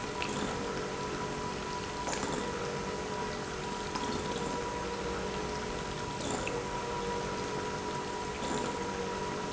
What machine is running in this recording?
pump